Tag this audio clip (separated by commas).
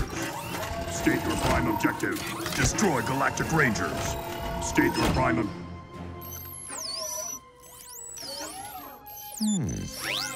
Speech, Music